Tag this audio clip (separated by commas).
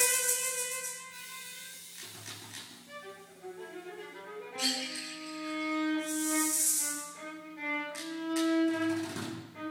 Music, Percussion